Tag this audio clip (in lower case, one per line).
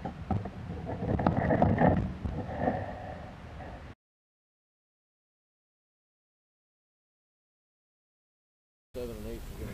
speech
outside, urban or man-made
silence